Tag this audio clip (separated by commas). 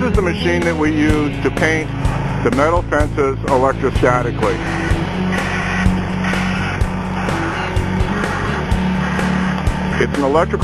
Speech, Music